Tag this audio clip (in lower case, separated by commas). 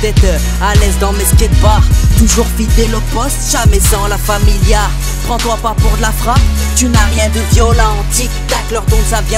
music